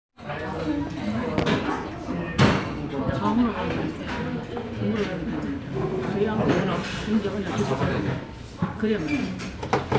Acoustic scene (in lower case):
restaurant